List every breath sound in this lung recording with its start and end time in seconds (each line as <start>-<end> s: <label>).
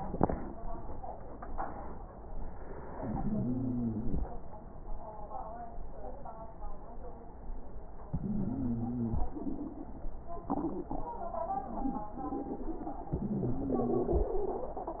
3.07-4.24 s: inhalation
3.07-4.24 s: wheeze
8.13-9.30 s: inhalation
8.13-9.30 s: wheeze
13.14-14.32 s: inhalation
13.14-14.32 s: wheeze